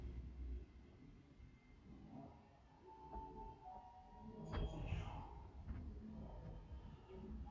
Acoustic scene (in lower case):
elevator